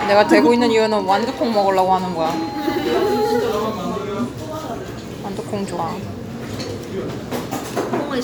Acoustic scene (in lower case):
restaurant